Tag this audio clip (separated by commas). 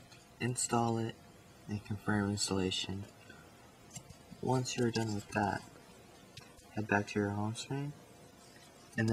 Speech